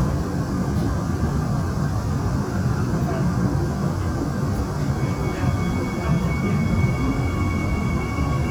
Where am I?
on a subway train